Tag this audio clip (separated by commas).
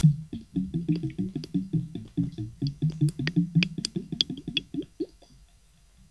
Bathtub (filling or washing), Water, Gurgling, Domestic sounds